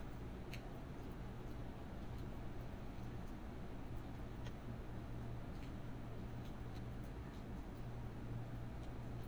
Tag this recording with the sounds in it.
background noise